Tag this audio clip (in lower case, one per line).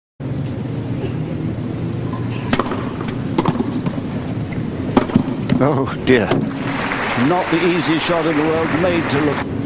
playing tennis